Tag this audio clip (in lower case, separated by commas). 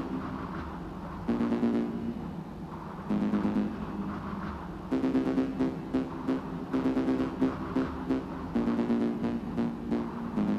exciting music, music